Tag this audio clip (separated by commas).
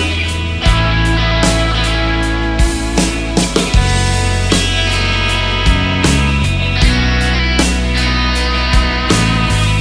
Strum, Guitar, Electric guitar, Musical instrument, Music, Plucked string instrument